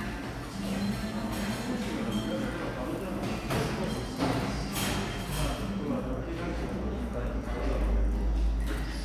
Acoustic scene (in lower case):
cafe